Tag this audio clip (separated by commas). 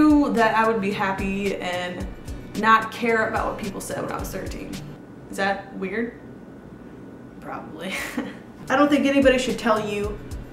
Music, inside a small room, Speech